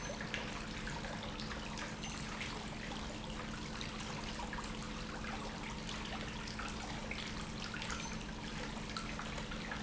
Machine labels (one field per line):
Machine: pump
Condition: normal